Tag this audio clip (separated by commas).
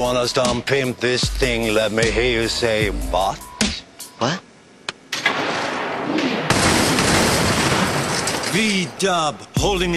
Speech, inside a large room or hall, Music